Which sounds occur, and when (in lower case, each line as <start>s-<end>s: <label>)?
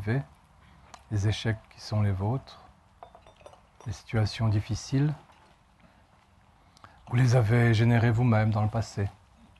0.0s-9.5s: wind
0.0s-0.3s: male speech
0.6s-0.8s: breathing
0.9s-1.0s: generic impact sounds
1.1s-2.7s: male speech
3.0s-3.5s: generic impact sounds
3.7s-3.9s: generic impact sounds
3.8s-5.1s: male speech
5.3s-5.6s: generic impact sounds
5.8s-6.3s: breathing
6.7s-7.0s: breathing
7.0s-9.1s: male speech
9.3s-9.5s: human sounds